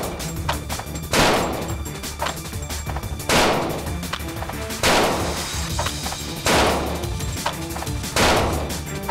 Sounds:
Music, Crackle

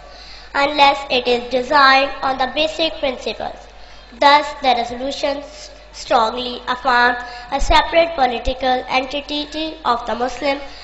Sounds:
Speech, Child speech, Narration, woman speaking

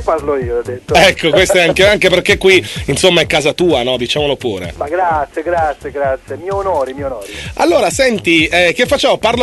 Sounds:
Radio, Speech, Music

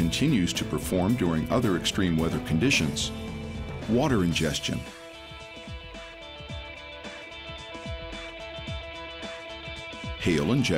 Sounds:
Speech, Music

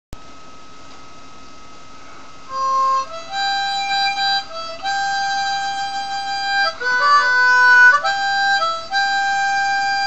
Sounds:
playing harmonica

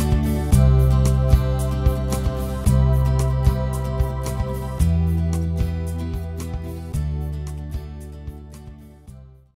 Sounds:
Music

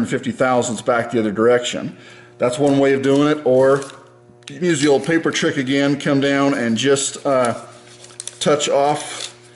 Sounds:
Speech

